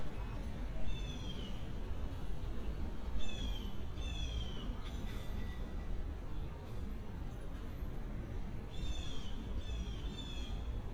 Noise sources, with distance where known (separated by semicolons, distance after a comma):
background noise